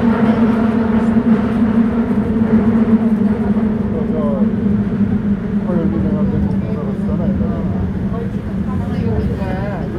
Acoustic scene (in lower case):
subway train